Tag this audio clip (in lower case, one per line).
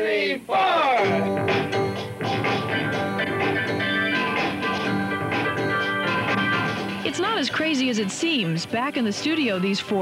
speech
music